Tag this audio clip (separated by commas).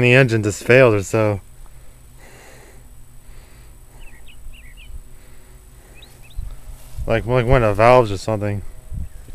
Bird, Speech